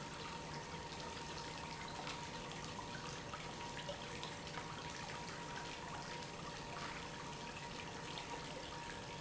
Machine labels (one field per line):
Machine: pump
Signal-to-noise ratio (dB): 6 dB